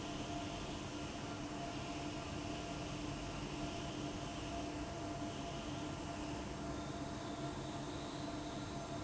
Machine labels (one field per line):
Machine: fan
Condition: abnormal